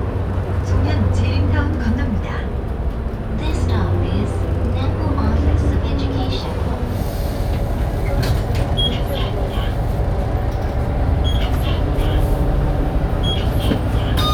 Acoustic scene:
bus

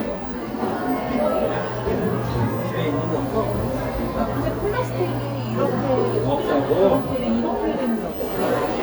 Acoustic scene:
cafe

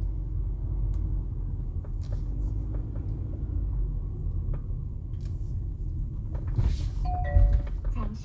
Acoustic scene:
car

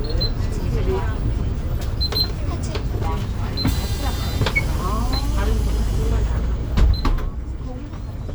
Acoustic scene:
bus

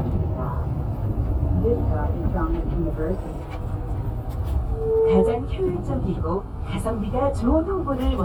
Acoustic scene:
bus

